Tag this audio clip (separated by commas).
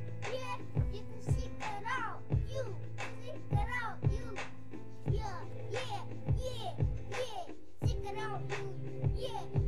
Child singing, Music